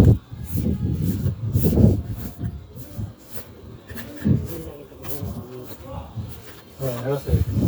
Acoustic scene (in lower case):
residential area